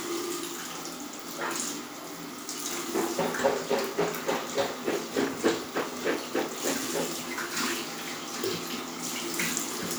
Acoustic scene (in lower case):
restroom